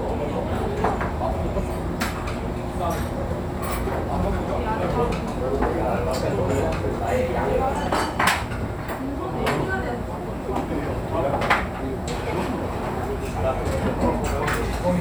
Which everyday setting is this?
restaurant